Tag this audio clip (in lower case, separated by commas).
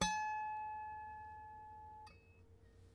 harp, music, musical instrument